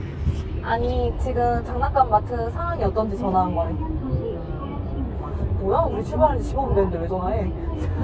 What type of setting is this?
car